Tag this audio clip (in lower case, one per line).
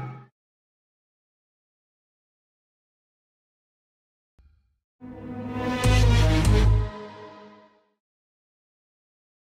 music